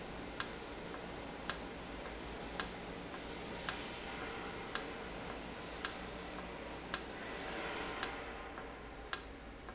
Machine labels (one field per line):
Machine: valve